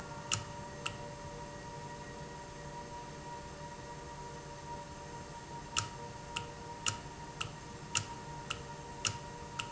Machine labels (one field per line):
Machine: valve